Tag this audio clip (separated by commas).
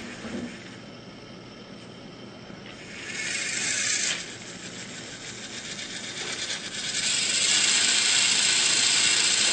inside a small room